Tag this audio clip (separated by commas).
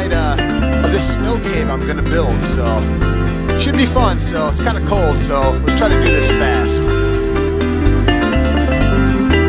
Speech, Music